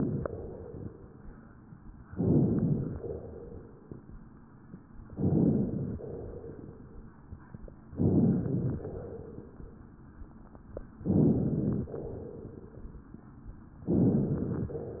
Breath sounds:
Inhalation: 2.12-3.00 s, 5.10-5.98 s, 7.93-8.80 s, 11.02-11.90 s, 13.89-14.76 s
Exhalation: 0.00-0.88 s, 3.02-3.89 s, 6.07-7.06 s, 8.86-9.73 s, 11.97-13.02 s

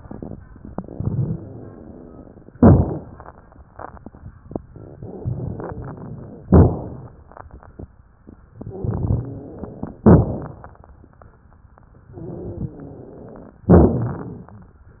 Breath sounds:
Inhalation: 2.54-3.19 s, 6.46-7.13 s, 10.02-10.70 s, 13.69-14.60 s
Exhalation: 0.73-2.54 s, 5.13-6.43 s, 8.58-9.98 s, 12.17-13.58 s
Crackles: 0.73-2.54 s, 2.54-3.19 s, 5.13-6.43 s, 6.46-7.13 s, 8.58-9.98 s, 10.02-10.70 s, 12.17-13.58 s, 13.69-14.60 s

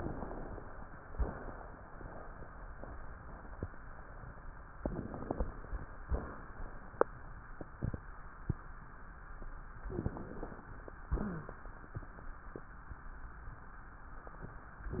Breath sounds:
Inhalation: 0.00-0.73 s, 4.74-5.46 s, 9.90-10.62 s, 14.92-15.00 s
Crackles: 0.00-0.73 s, 4.72-5.44 s, 9.90-10.62 s, 14.92-15.00 s

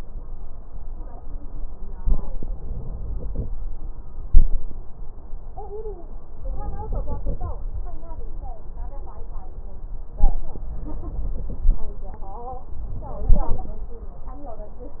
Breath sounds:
Inhalation: 1.98-3.48 s, 6.47-7.52 s, 10.75-11.82 s
Exhalation: 4.28-4.58 s
Crackles: 1.98-3.48 s

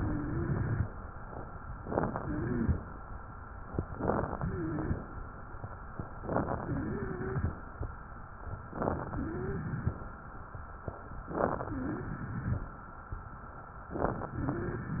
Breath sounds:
Inhalation: 0.00-0.89 s, 1.82-2.18 s, 6.17-6.62 s, 8.65-9.11 s, 11.16-11.65 s, 13.91-14.38 s
Exhalation: 2.24-2.83 s, 4.40-5.07 s, 6.58-7.59 s, 9.11-10.04 s, 11.71-12.65 s
Wheeze: 0.00-0.89 s, 2.24-2.83 s, 4.44-5.05 s, 6.60-7.57 s, 9.12-10.00 s, 11.63-12.16 s, 14.38-14.91 s
Crackles: 1.82-2.18 s, 3.78-4.36 s, 6.13-6.56 s, 8.63-9.09 s, 11.16-11.65 s

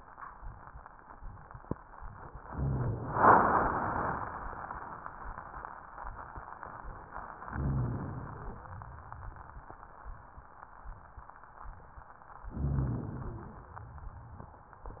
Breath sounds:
Inhalation: 7.52-8.71 s, 12.51-13.70 s
Rhonchi: 7.43-8.02 s

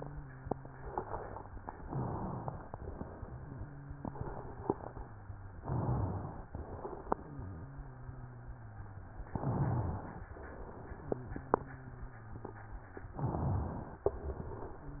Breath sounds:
Inhalation: 1.79-2.72 s, 5.58-6.51 s, 9.31-10.24 s, 13.16-14.09 s
Exhalation: 2.74-3.64 s, 6.51-7.68 s, 10.28-11.45 s, 14.09-15.00 s
Wheeze: 0.00-1.78 s, 3.16-5.54 s, 7.20-9.27 s, 11.09-13.08 s, 14.73-15.00 s

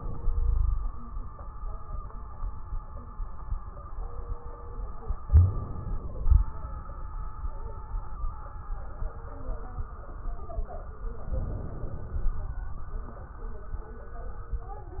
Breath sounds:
Inhalation: 5.28-6.50 s, 11.27-12.65 s
Exhalation: 0.21-0.91 s
Wheeze: 0.21-0.91 s
Crackles: 5.28-6.50 s, 11.27-12.65 s

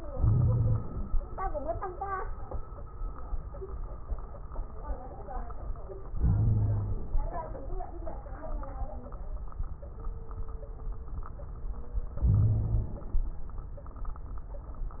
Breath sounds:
Inhalation: 0.12-1.09 s, 6.13-7.17 s, 12.23-13.19 s
Wheeze: 0.12-0.80 s, 6.19-6.94 s, 12.23-12.91 s

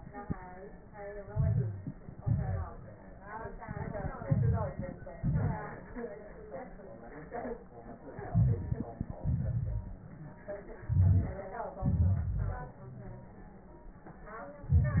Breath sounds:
Inhalation: 1.21-2.01 s, 4.09-5.08 s, 8.13-9.07 s, 10.74-11.76 s, 14.63-15.00 s
Exhalation: 2.01-2.98 s, 5.09-5.97 s, 9.06-10.37 s, 11.75-13.60 s
Wheeze: 9.67-10.37 s, 10.85-11.31 s, 11.89-13.60 s
Crackles: 1.21-2.00 s, 2.01-2.98 s, 4.09-5.08 s, 5.11-5.97 s, 8.13-9.07 s

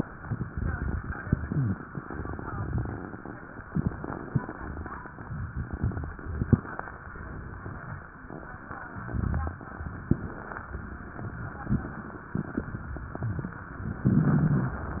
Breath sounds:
Wheeze: 1.44-1.78 s
Rhonchi: 14.10-14.78 s

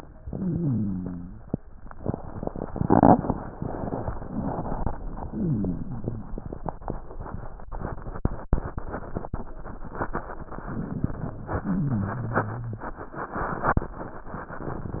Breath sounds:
Rhonchi: 0.27-1.43 s, 5.20-6.36 s, 11.61-13.07 s

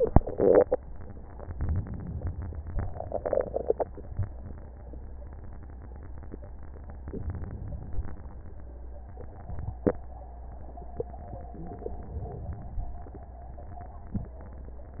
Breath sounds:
Inhalation: 1.53-2.26 s, 7.10-7.83 s, 11.56-12.69 s

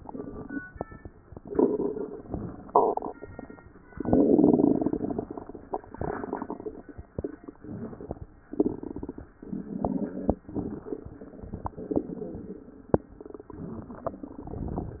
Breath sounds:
Inhalation: 7.51-8.28 s, 9.44-10.35 s, 11.77-12.68 s
Exhalation: 8.43-9.32 s, 10.48-11.74 s, 13.45-15.00 s

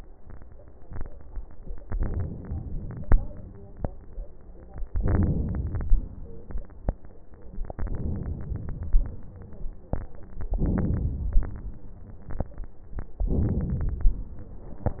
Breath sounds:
Inhalation: 1.84-3.08 s, 4.93-5.87 s, 7.71-9.07 s, 10.55-11.51 s, 13.28-14.21 s
Exhalation: 3.08-3.78 s, 5.87-6.60 s, 9.07-9.71 s, 11.51-12.42 s, 14.21-15.00 s

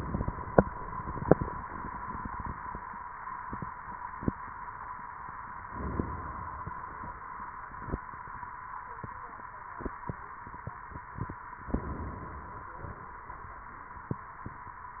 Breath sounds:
Inhalation: 5.65-7.08 s, 11.66-13.09 s

